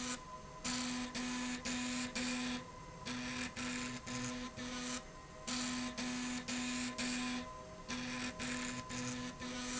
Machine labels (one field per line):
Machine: slide rail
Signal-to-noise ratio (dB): 6 dB